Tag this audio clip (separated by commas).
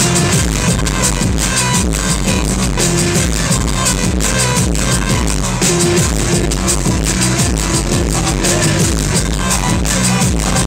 Musical instrument, Music, Drum, Roll